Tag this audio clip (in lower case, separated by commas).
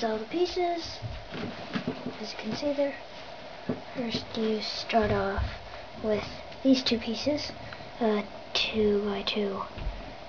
speech